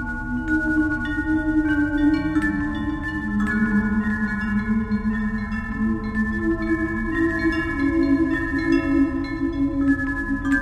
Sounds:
Scary music, Music

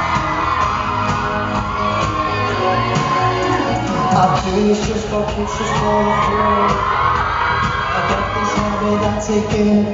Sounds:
Music, Male singing

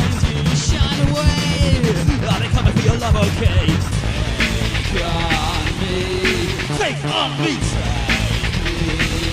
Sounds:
Music, Techno

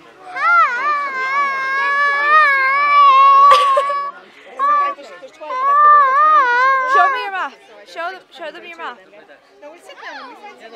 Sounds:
Speech, outside, urban or man-made

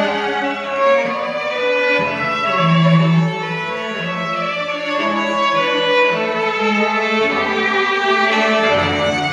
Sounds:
Music, Violin, Cello, Musical instrument

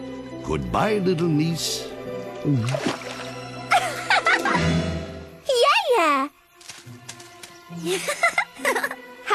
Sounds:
Speech, outside, rural or natural, Music

